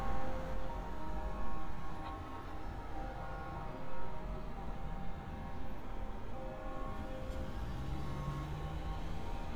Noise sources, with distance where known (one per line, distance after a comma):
medium-sounding engine